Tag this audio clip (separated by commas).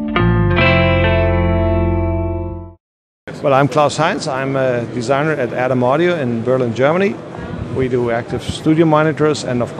Speech, Music, inside a large room or hall